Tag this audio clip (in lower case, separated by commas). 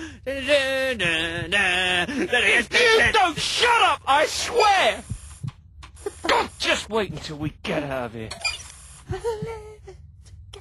speech